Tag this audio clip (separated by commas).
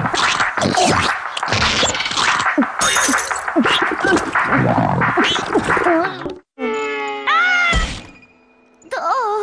Music